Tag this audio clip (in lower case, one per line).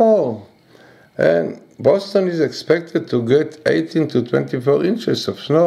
speech